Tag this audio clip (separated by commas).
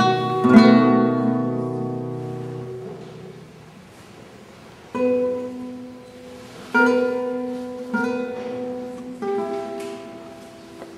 Guitar, Strum, Musical instrument, Music, Plucked string instrument